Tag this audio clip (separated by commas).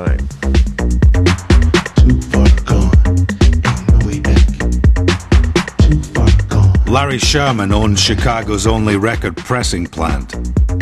Speech, Music, Background music